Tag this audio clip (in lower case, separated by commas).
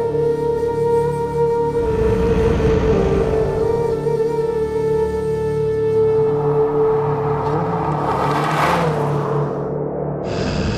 music